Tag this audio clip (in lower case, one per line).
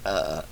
burping